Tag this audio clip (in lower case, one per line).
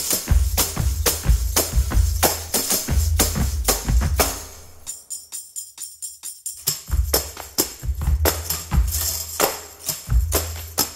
tambourine
music